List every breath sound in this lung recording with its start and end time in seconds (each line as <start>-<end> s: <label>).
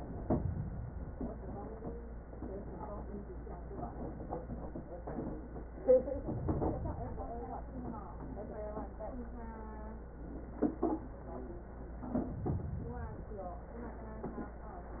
6.24-7.50 s: inhalation
12.20-13.53 s: inhalation